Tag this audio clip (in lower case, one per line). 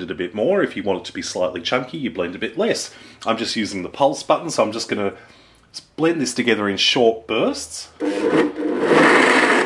inside a small room
speech